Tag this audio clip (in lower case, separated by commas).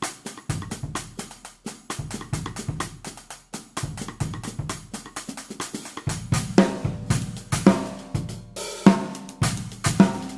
snare drum, percussion, cymbal, rimshot, drum kit, drum, hi-hat, bass drum